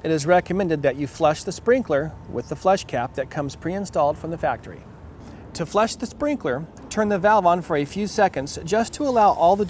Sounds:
speech

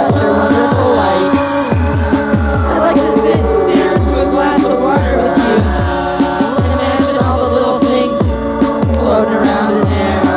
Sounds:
music

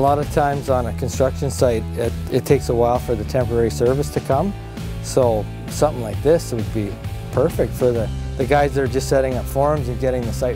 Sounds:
music
speech

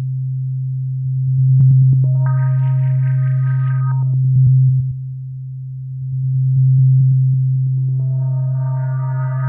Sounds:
music
electronic music

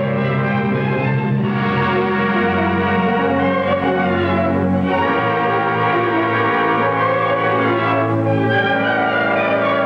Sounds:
music

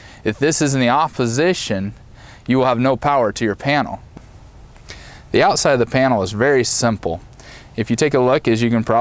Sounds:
speech

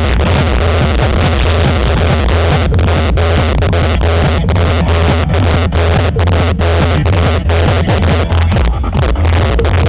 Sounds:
music

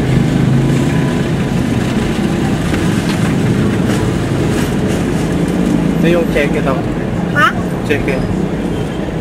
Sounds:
vehicle
speech
car

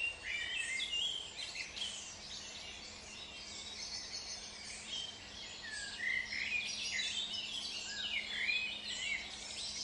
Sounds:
environmental noise
animal

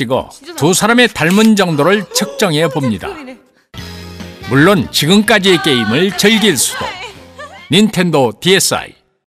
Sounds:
speech
music

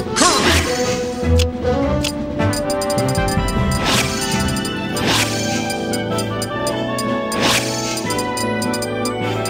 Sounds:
music

